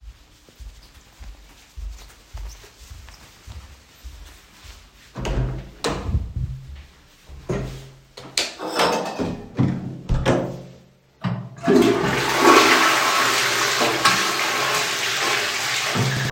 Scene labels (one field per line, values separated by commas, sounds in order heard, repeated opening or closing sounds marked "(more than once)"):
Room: hallway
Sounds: footsteps, door (more than once), light switch, toilet flushing